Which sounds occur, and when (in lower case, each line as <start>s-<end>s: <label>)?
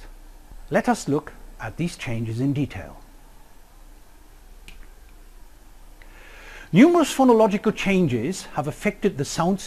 0.0s-9.6s: mechanisms
0.7s-1.3s: male speech
1.6s-3.0s: male speech
3.0s-3.1s: tick
4.7s-4.9s: generic impact sounds
5.1s-5.1s: tick
6.0s-6.7s: breathing
6.7s-9.6s: male speech